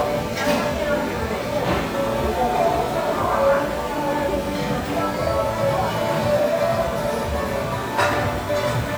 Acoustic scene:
restaurant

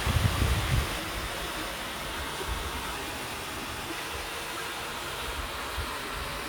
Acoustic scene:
park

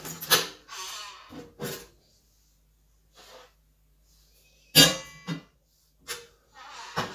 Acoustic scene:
kitchen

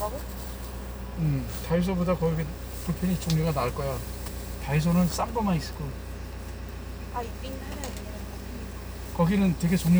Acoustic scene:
car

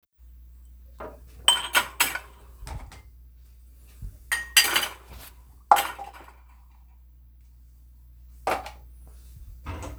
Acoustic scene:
kitchen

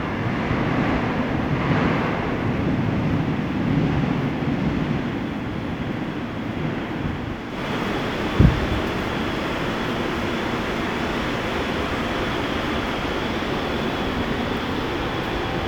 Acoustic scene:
subway station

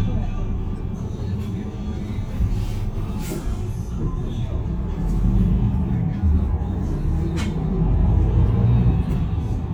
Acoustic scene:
bus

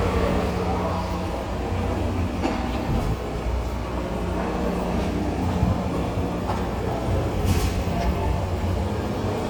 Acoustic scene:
subway station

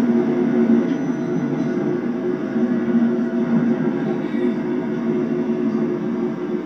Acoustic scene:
subway train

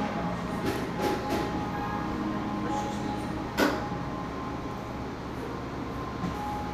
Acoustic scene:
cafe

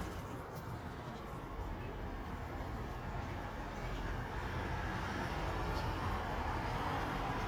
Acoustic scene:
residential area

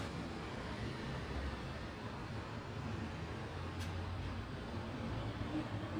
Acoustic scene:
residential area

